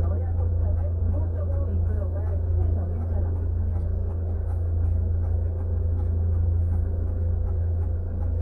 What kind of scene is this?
car